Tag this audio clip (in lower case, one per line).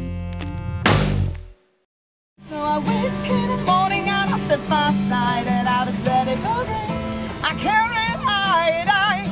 music